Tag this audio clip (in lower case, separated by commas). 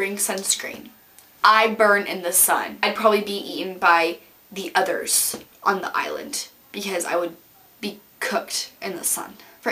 speech